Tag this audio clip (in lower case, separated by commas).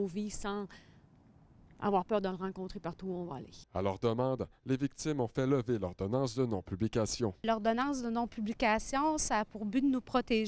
speech